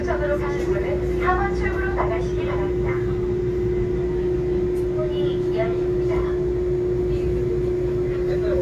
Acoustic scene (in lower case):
subway train